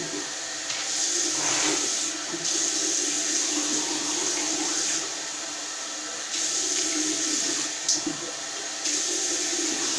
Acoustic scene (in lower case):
restroom